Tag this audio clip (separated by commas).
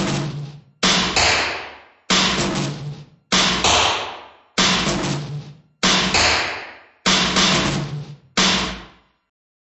Music, Percussion